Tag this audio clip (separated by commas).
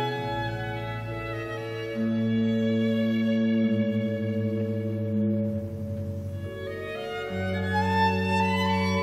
Music, fiddle, Musical instrument